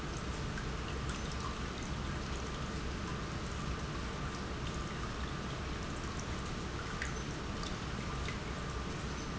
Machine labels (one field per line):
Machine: pump